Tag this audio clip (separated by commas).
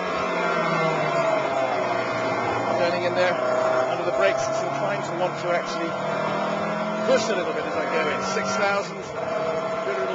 Speech